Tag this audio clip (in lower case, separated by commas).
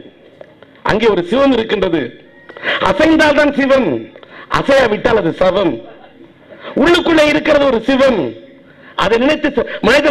male speech, speech